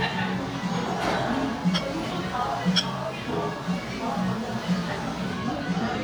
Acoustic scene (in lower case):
cafe